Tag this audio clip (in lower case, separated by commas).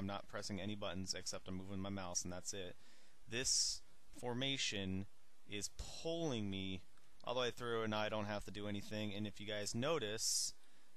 speech